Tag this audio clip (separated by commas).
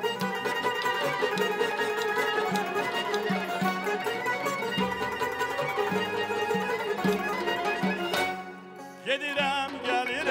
Music